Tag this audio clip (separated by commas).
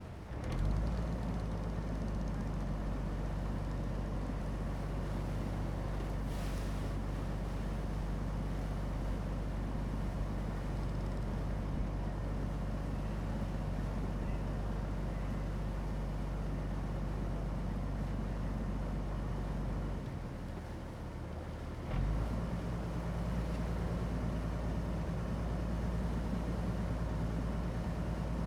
Water vehicle, Vehicle